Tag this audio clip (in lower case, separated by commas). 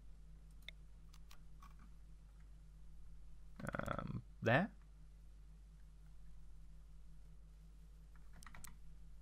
clicking, speech